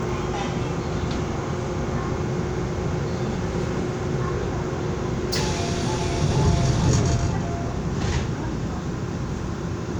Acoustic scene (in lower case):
subway train